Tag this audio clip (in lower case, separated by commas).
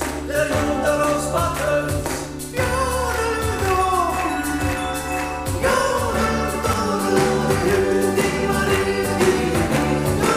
yodelling